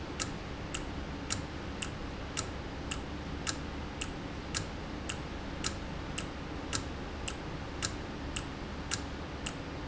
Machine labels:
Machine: valve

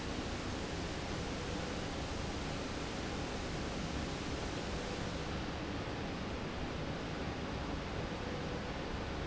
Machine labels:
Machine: slide rail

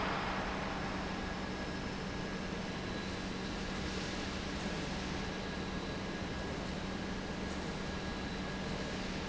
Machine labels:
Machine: pump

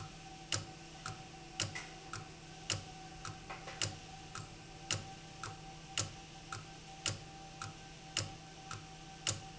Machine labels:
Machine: valve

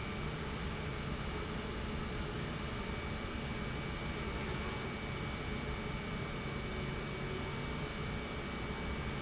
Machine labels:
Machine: pump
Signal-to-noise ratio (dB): -6 dB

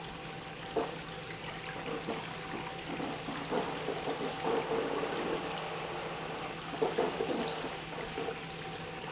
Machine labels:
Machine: pump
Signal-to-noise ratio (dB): 0 dB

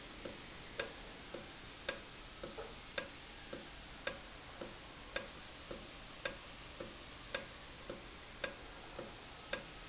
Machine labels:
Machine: valve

